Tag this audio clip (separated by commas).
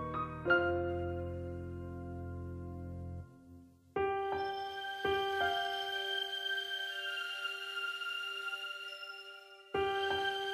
Music